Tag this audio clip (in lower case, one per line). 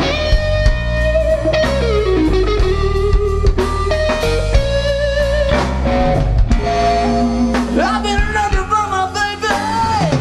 music